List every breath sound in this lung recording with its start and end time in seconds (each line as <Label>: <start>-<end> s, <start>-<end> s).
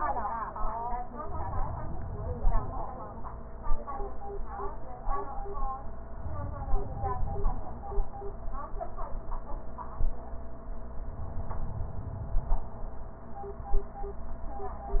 Inhalation: 1.22-3.00 s, 6.14-7.92 s, 11.01-12.79 s
Rhonchi: 1.50-2.81 s, 6.43-7.64 s, 11.18-12.53 s